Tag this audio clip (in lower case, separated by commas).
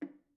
percussion, musical instrument, drum, music, wood